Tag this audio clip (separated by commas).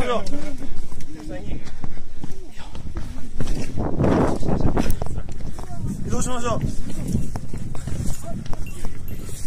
volcano explosion